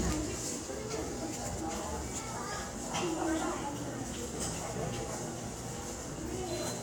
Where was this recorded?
in a subway station